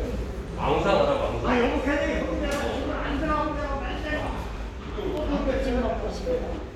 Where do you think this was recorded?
in a subway station